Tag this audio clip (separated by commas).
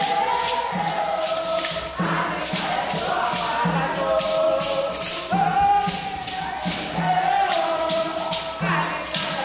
Music